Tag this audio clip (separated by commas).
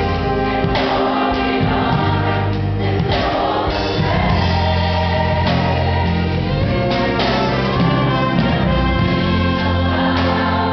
Music